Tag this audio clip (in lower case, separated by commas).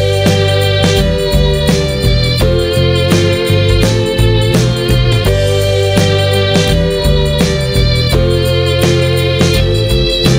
music